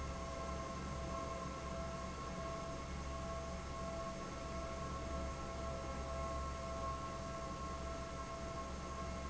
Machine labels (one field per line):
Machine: fan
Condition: abnormal